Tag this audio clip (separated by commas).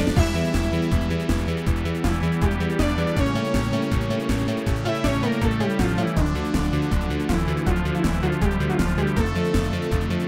Video game music, Music